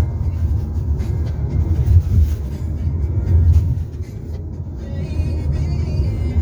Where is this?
in a car